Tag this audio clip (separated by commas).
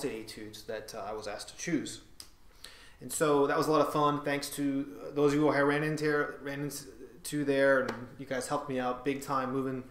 Speech